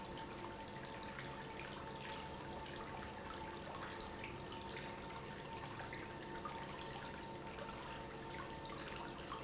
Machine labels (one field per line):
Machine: pump